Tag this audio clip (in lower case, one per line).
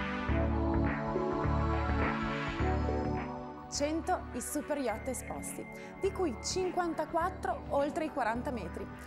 music
speech